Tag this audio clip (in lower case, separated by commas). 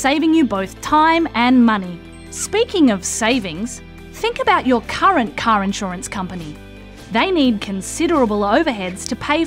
speech, music